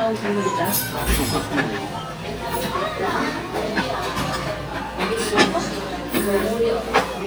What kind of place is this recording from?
restaurant